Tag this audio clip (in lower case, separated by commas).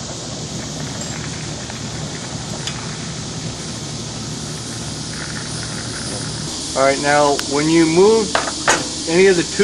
speech